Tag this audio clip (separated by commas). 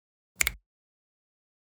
Hands, Finger snapping